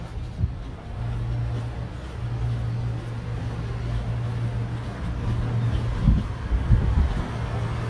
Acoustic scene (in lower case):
residential area